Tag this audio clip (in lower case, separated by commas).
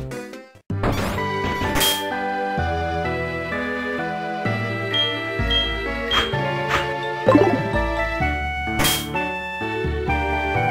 music, video game music